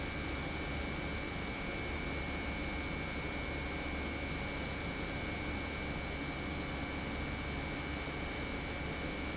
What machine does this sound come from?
pump